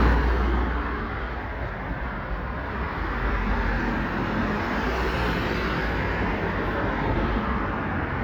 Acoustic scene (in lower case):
street